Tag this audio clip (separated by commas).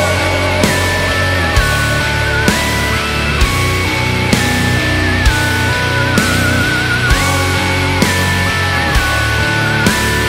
Music